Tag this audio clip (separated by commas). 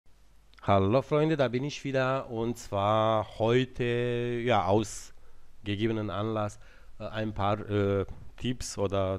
mouse clicking